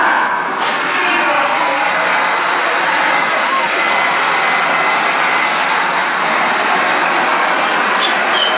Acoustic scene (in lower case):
subway station